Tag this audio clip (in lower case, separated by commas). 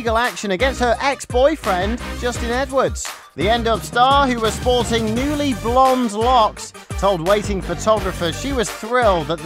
speech, music